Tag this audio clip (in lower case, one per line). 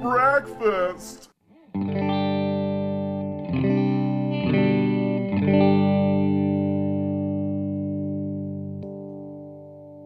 plucked string instrument
musical instrument
effects unit
guitar
music